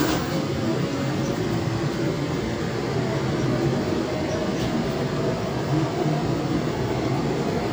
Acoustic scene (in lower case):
subway train